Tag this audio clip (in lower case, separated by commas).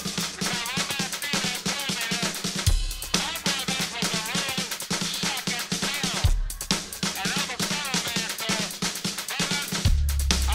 speech, music, drum, musical instrument, drum kit